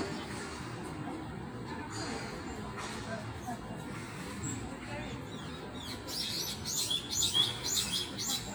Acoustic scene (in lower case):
park